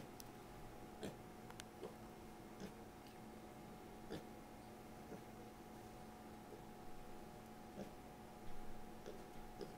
Silence followed by faint oinking